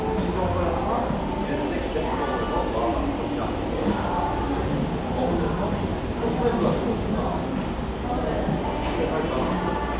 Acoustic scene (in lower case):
cafe